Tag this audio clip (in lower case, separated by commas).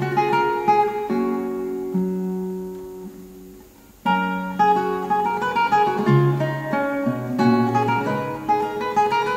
guitar, acoustic guitar, plucked string instrument, musical instrument, music